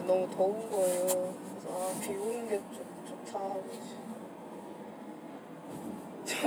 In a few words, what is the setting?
car